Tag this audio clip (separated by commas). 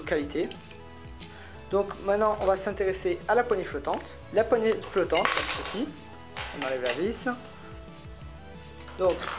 Music, Speech